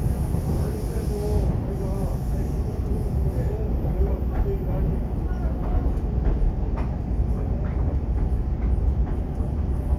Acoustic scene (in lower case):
subway train